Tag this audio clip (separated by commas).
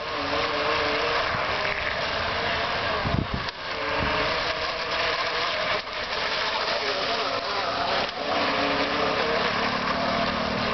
Vehicle, speedboat